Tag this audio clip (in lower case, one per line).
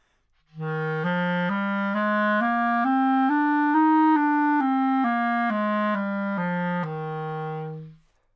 woodwind instrument
music
musical instrument